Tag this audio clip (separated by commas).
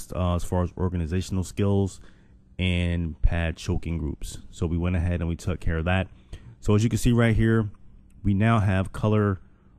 Speech